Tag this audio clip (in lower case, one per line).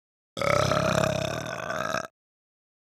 burping